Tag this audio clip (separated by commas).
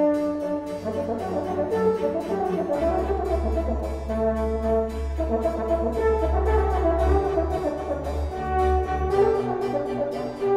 playing french horn